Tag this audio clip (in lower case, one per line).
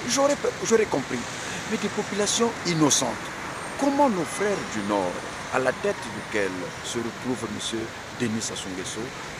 speech